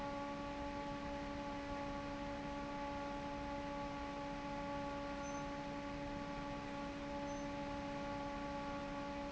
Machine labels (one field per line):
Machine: fan